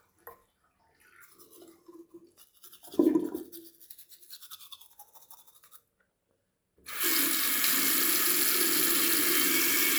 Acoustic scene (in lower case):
restroom